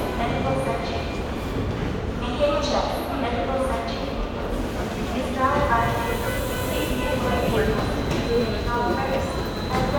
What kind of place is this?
subway station